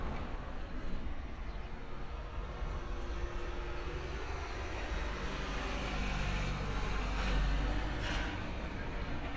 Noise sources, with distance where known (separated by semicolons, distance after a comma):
medium-sounding engine